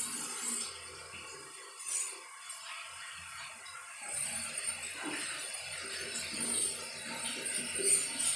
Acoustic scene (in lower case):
restroom